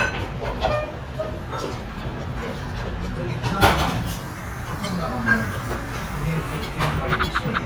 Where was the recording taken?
in a restaurant